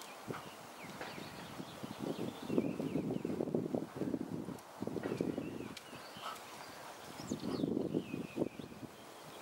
A horse trots by as his hooves make a clip-clop noise